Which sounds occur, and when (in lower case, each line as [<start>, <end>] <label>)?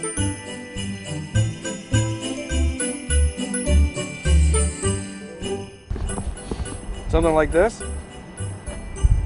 [0.00, 9.25] jingle bell
[0.00, 9.25] music
[5.89, 9.25] motor vehicle (road)
[5.90, 9.25] wind
[5.92, 6.76] wind noise (microphone)
[7.09, 7.86] man speaking
[7.11, 9.25] conversation
[7.11, 7.40] wind noise (microphone)
[9.07, 9.25] wind noise (microphone)